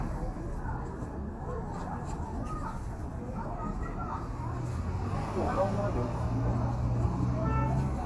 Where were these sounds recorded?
in a residential area